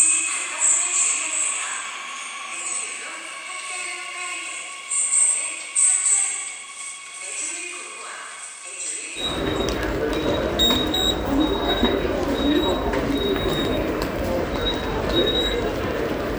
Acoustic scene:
subway station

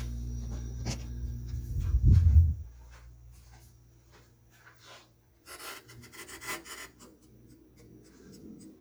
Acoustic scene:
kitchen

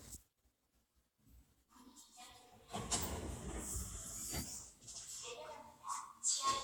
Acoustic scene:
elevator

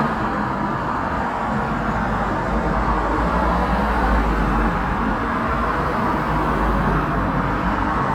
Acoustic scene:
street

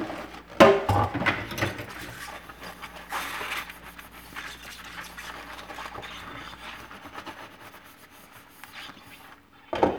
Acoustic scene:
kitchen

